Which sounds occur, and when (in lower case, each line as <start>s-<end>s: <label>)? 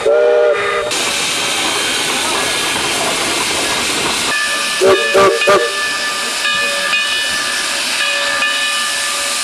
0.0s-0.9s: steam whistle
0.0s-9.4s: hiss
0.0s-9.4s: train
1.6s-2.5s: male speech
4.3s-4.8s: bell
4.8s-5.0s: steam whistle
4.9s-5.2s: bell
5.1s-5.3s: steam whistle
5.3s-7.6s: bell
5.4s-5.6s: steam whistle
6.4s-6.9s: male speech
8.0s-9.4s: bell